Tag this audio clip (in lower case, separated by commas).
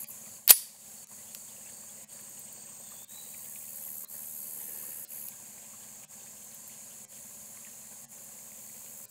outside, rural or natural